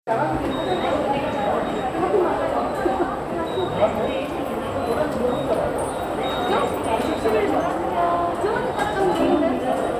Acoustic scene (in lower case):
subway station